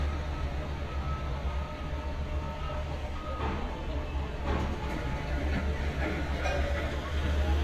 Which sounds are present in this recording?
unidentified alert signal